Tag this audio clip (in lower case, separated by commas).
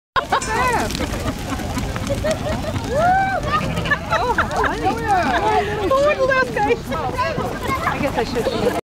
sheep, speech